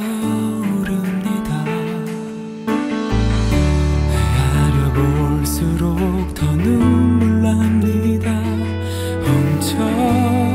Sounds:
music

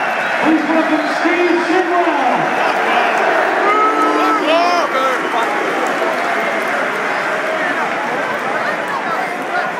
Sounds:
speech

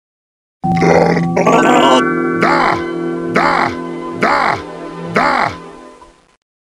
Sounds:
music
speech

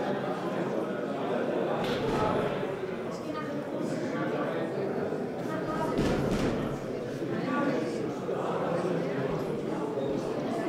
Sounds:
sound effect
speech
crowd

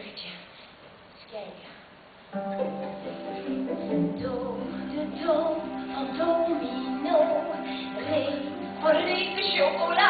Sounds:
speech
music

